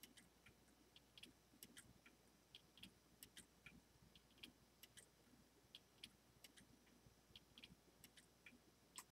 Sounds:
tick-tock
tick

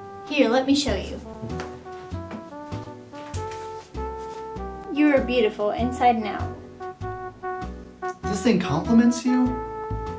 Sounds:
speech
music

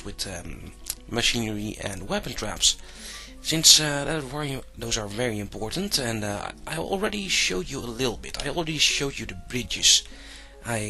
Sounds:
narration

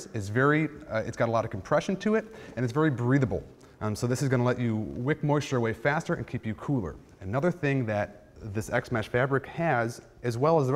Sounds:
speech

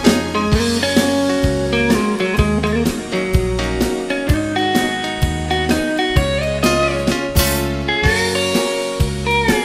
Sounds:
music
slide guitar

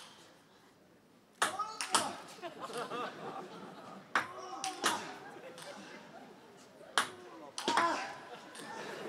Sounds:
playing table tennis

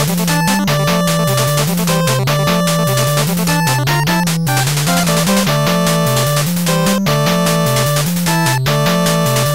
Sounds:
music

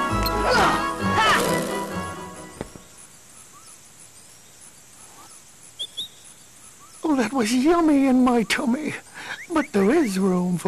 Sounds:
speech
music
environmental noise

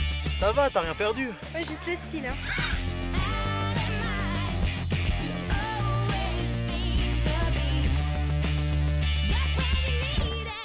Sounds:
speech
music

